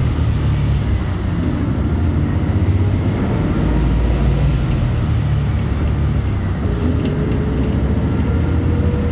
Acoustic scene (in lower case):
bus